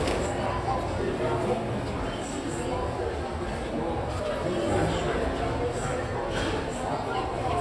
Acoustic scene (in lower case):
crowded indoor space